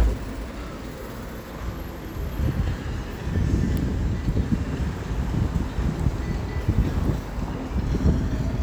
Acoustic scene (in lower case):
street